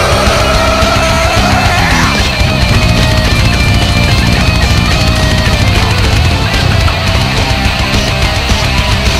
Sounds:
Angry music, inside a large room or hall, Guitar, Musical instrument, Rock music, Heavy metal, Singing, Music

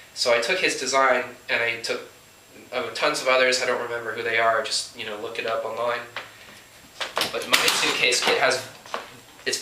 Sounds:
Speech

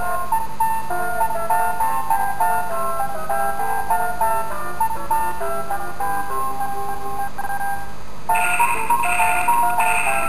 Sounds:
Music, Theme music

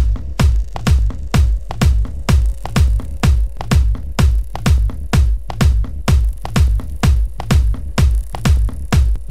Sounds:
Techno, Music

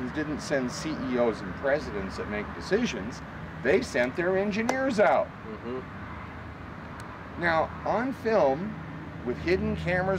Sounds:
Speech

